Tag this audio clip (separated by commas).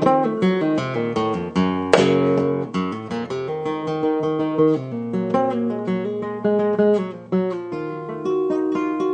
Musical instrument, Music of Latin America, Music, Guitar